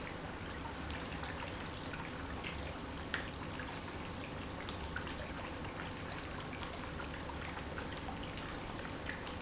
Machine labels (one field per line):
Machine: pump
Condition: normal